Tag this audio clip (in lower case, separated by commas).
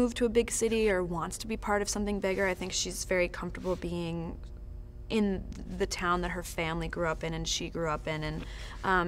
speech